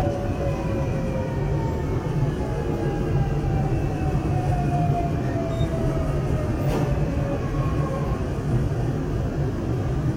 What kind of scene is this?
subway train